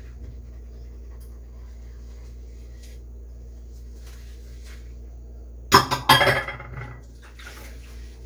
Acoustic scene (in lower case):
kitchen